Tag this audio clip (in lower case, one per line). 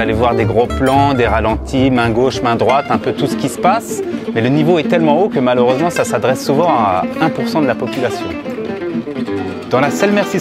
speech
musical instrument
music